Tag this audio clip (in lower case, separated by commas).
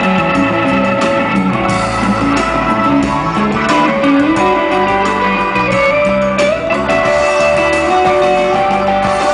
music